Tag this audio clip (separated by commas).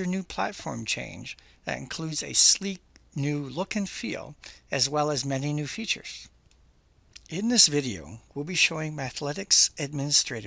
Speech